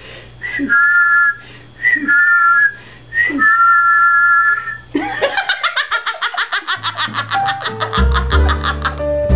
Whistling followed by laughter and music